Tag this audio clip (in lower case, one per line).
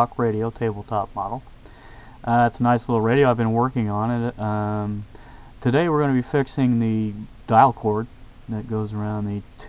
speech